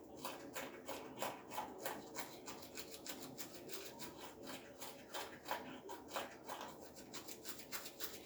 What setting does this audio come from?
restroom